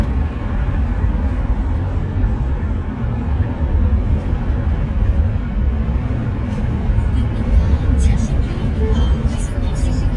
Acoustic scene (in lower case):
car